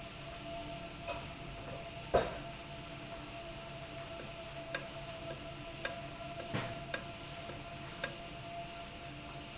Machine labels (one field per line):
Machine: valve